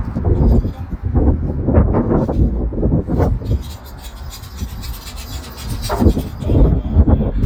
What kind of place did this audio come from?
residential area